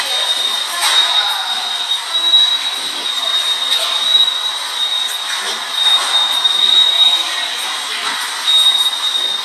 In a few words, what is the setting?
subway station